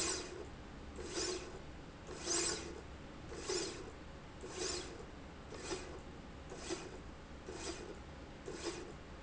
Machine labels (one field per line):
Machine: slide rail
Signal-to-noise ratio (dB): 6 dB